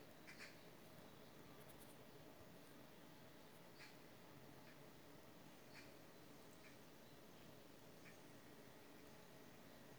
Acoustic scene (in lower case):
park